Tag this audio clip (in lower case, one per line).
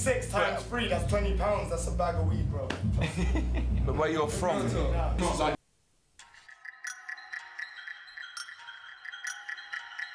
music
speech